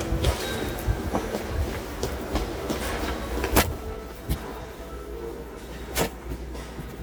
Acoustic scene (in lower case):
subway station